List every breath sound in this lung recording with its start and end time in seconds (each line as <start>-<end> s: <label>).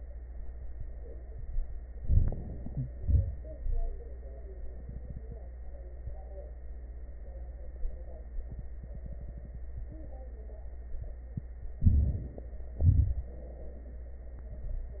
1.85-2.85 s: crackles
1.86-2.93 s: inhalation
2.92-3.64 s: exhalation
2.92-3.64 s: crackles
11.81-12.53 s: inhalation
11.81-12.53 s: crackles
12.82-14.04 s: exhalation